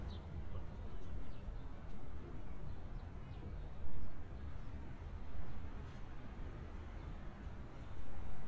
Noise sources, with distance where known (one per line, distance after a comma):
background noise